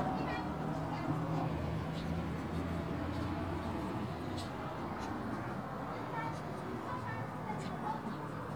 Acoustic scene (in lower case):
residential area